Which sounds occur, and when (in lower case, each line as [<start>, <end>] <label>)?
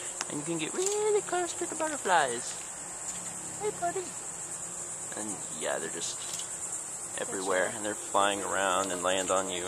[0.00, 9.65] insect
[0.00, 9.65] mechanisms
[0.14, 0.24] tick
[0.19, 9.65] conversation
[0.21, 2.37] man speaking
[1.63, 1.90] walk
[2.49, 2.74] walk
[2.92, 3.17] walk
[3.48, 4.11] man speaking
[5.15, 6.06] man speaking
[7.12, 7.70] female speech
[7.15, 9.65] man speaking
[8.64, 8.79] tick